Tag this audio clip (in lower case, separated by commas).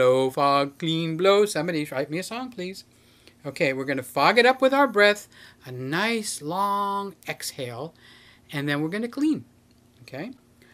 speech